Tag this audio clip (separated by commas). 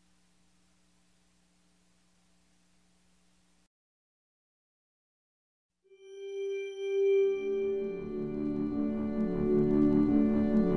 Music